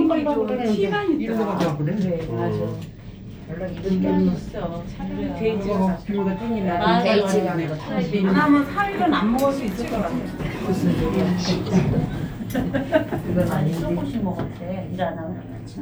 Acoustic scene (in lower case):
elevator